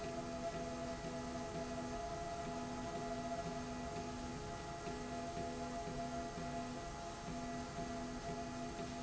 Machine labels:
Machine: slide rail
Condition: normal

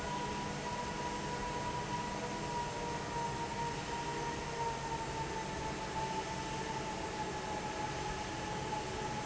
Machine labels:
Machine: fan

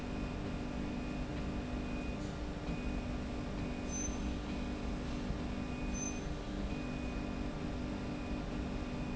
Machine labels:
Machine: slide rail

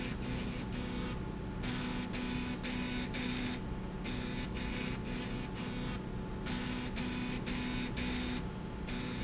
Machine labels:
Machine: slide rail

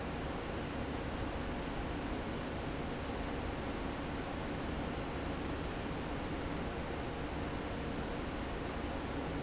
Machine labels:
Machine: fan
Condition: normal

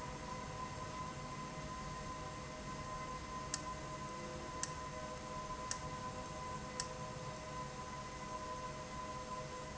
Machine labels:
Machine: valve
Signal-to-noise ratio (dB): 0 dB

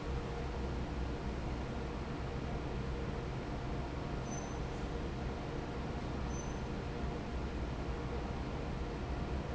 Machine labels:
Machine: fan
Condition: normal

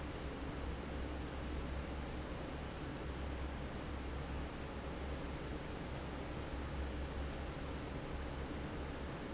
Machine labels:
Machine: fan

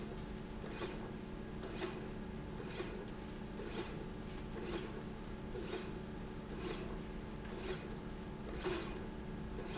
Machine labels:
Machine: slide rail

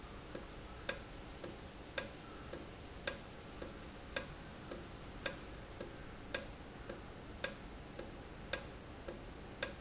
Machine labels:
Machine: valve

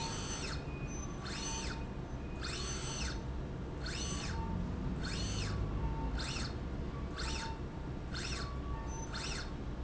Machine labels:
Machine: slide rail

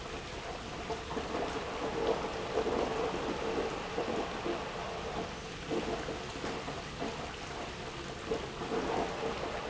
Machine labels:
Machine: pump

